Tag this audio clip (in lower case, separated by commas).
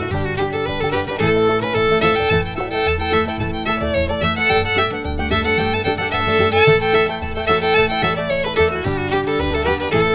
fiddle, musical instrument, music